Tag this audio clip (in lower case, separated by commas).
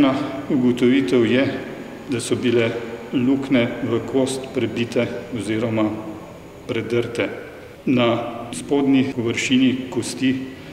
speech